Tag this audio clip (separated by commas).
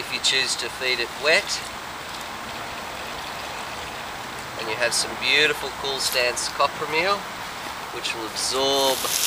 Speech